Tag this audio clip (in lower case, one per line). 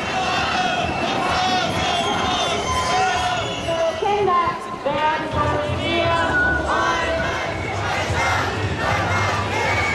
people marching